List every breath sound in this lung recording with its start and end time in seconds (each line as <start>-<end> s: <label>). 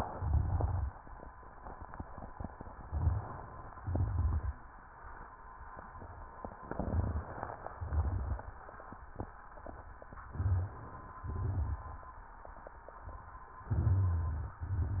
0.00-0.99 s: exhalation
0.00-0.99 s: crackles
2.75-3.44 s: inhalation
2.75-3.44 s: crackles
3.79-4.63 s: exhalation
3.79-4.63 s: crackles
6.60-7.44 s: inhalation
6.60-7.44 s: crackles
7.72-8.56 s: exhalation
7.72-8.56 s: crackles
10.32-10.84 s: crackles
10.32-11.16 s: inhalation
11.21-12.01 s: exhalation
11.21-12.01 s: crackles
13.76-14.55 s: inhalation
13.76-14.55 s: crackles
14.61-15.00 s: exhalation
14.61-15.00 s: crackles